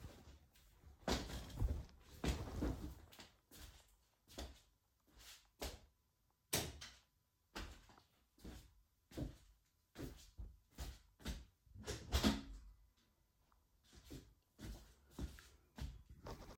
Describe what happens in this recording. I got out of my bed, went to turn on the lights, then closed the window.